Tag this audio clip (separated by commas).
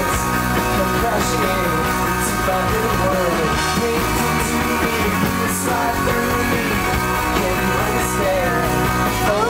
Music